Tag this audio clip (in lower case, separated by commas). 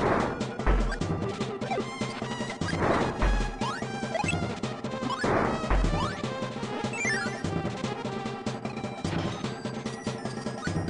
music